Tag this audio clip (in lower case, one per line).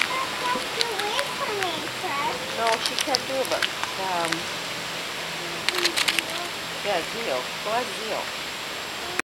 speech